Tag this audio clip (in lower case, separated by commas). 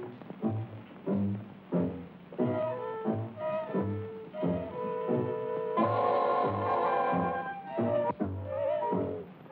music